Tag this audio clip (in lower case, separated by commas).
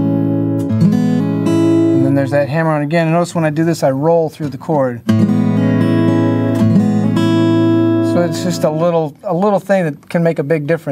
plucked string instrument, strum, musical instrument, acoustic guitar, guitar, music